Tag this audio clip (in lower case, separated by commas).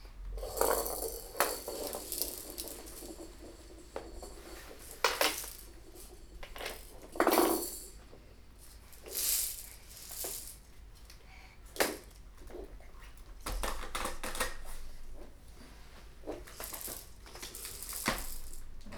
music, rattle (instrument), musical instrument, percussion